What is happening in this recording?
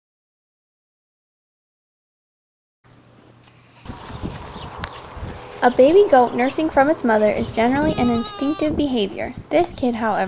A girl talking and goat crying